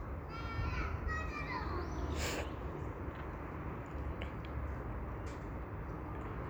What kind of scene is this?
park